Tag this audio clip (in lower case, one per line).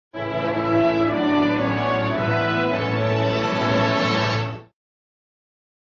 music